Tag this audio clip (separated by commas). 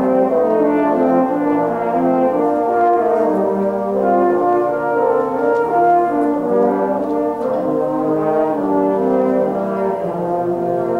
playing french horn